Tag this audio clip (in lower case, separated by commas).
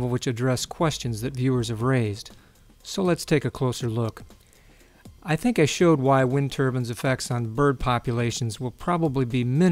music, speech